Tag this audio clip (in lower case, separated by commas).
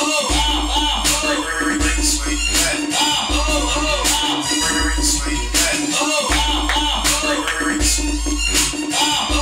inside a large room or hall, music, scratching (performance technique)